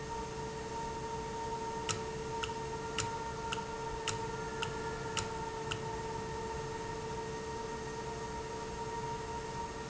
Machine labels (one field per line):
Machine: valve